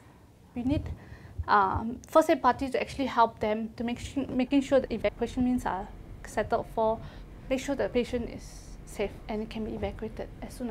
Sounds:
Speech

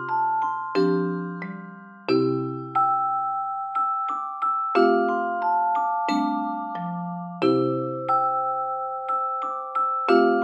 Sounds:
Music, Rock and roll

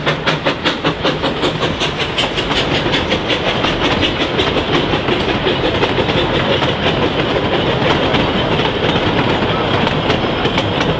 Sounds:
train whistling

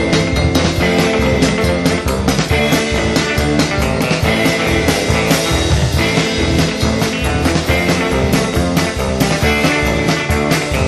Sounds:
Music, Psychedelic rock

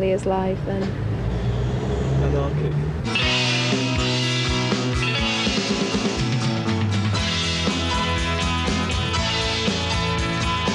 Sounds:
Musical instrument, Speech, Music

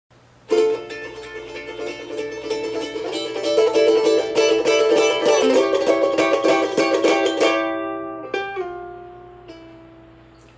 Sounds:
Ukulele, Music, Banjo

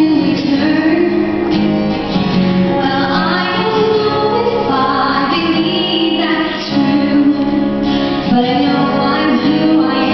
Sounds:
Music, Female singing

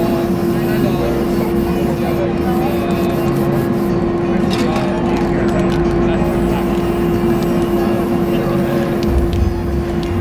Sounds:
Speech, Spray

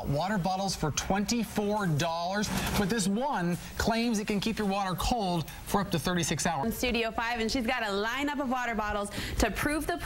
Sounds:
Speech

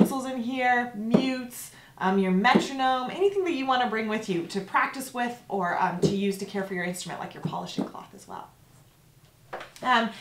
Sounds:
Speech

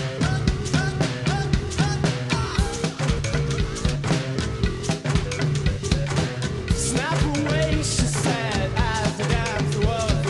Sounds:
Music

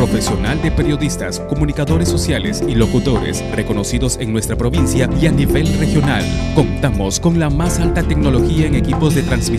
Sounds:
Music, Speech

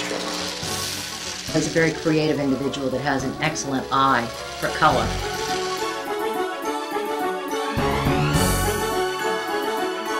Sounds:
inside a small room, Speech, Music

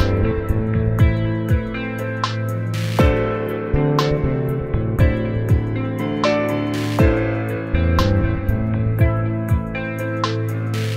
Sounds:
Music

